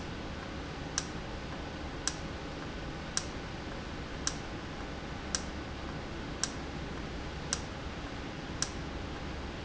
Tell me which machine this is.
valve